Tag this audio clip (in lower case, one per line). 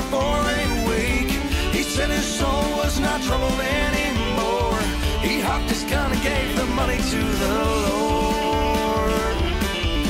music